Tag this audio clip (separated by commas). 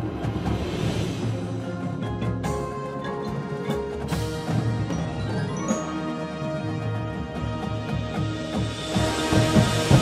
Music, Musical instrument, Drum, Drum kit